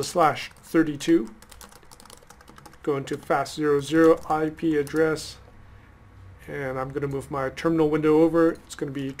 A man talks followed by typing